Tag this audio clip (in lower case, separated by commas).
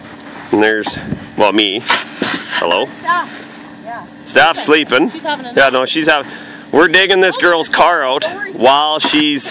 speech